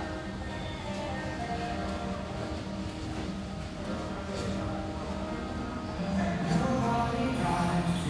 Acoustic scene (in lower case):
restaurant